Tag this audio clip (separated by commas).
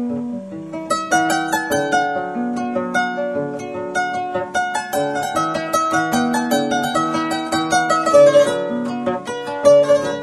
Plucked string instrument, Musical instrument, Music